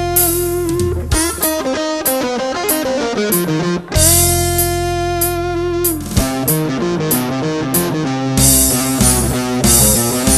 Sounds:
acoustic guitar
playing acoustic guitar
guitar
musical instrument
strum
music
plucked string instrument

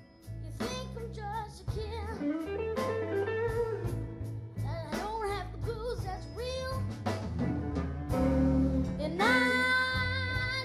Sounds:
musical instrument
plucked string instrument
acoustic guitar
electric guitar
strum
music
guitar

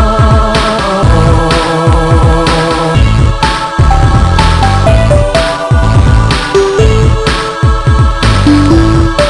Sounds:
music
dance music

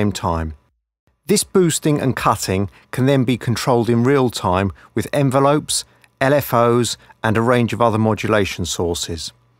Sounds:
speech

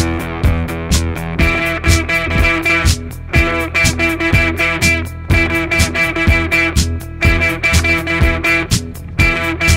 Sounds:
music

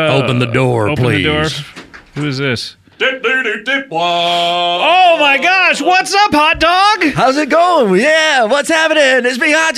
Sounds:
speech

